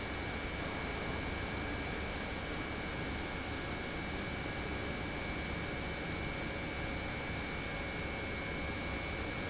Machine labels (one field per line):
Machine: pump